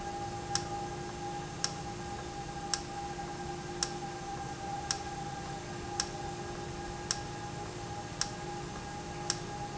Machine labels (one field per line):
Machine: valve